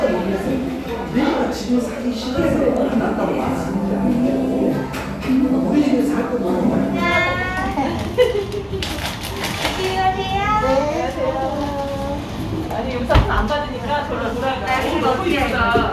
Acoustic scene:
cafe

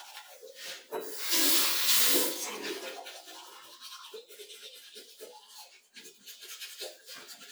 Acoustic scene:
restroom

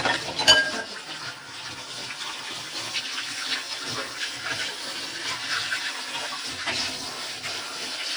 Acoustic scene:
kitchen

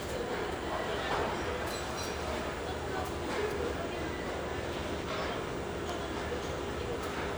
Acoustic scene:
restaurant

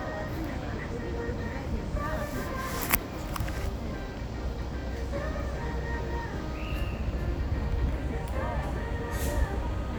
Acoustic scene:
street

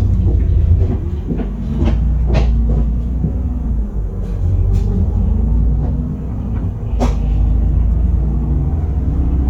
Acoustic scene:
bus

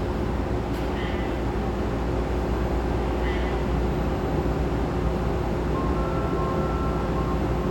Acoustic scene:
subway train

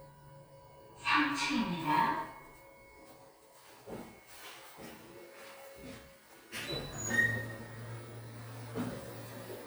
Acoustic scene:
elevator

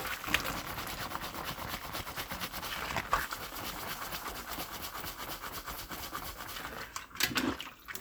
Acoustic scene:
kitchen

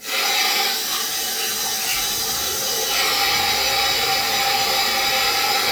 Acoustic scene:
restroom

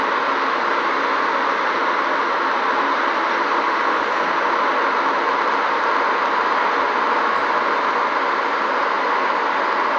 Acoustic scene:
street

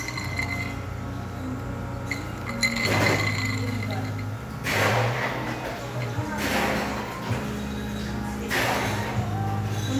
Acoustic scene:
cafe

